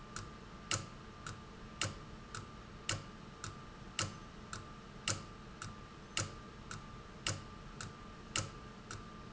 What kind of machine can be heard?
valve